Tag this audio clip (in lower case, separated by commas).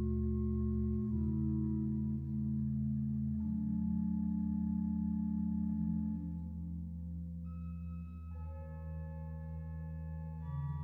inside a large room or hall, keyboard (musical), music, classical music, musical instrument, organ